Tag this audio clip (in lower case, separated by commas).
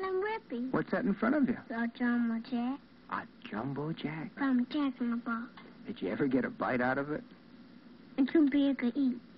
speech